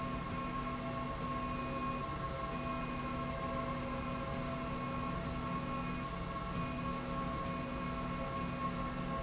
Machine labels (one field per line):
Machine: slide rail